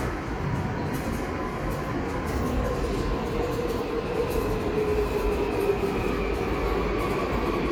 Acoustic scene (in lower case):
subway station